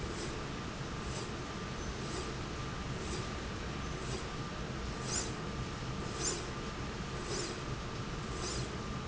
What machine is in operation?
slide rail